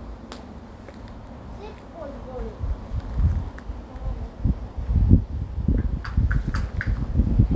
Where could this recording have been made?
in a residential area